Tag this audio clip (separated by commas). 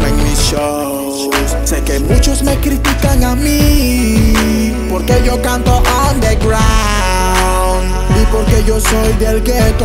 Music